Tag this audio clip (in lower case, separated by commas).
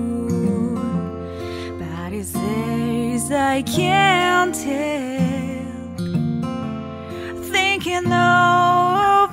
music, double bass